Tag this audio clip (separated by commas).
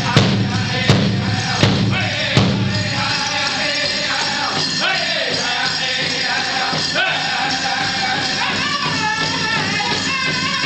Music